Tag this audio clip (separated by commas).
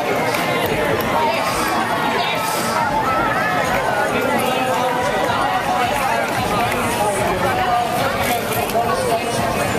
Speech, Crowd